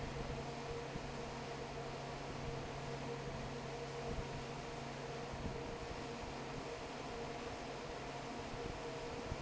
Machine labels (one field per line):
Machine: fan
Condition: normal